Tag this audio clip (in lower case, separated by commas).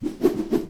swish